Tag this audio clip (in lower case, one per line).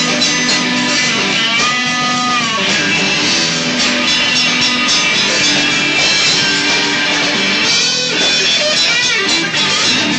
music
rock music